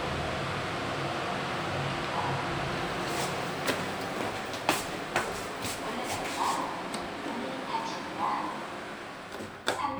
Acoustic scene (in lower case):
elevator